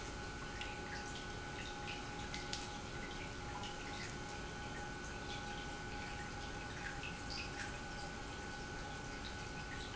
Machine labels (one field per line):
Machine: pump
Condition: normal